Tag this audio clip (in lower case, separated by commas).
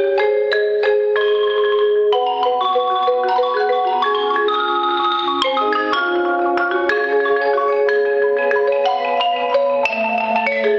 music, playing marimba, marimba